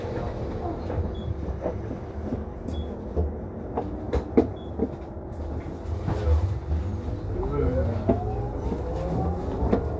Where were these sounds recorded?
on a bus